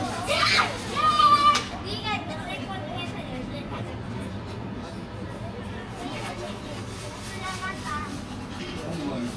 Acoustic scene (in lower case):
park